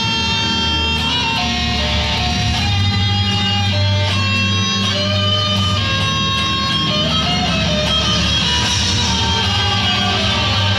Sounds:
Acoustic guitar, Musical instrument, Guitar, Music

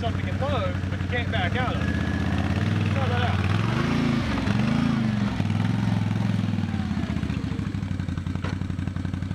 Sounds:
Speech, Vehicle, outside, rural or natural

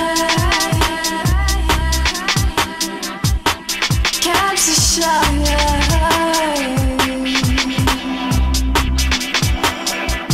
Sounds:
Music

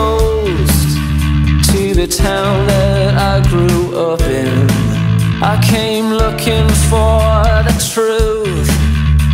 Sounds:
Music, Grunge

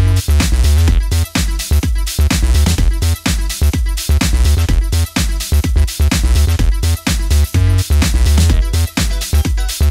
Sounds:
Music, Disco, Soundtrack music

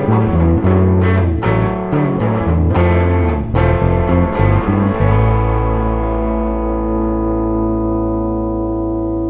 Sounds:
Music

